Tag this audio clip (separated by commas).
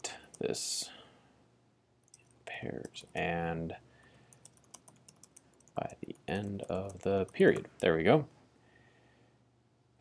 Speech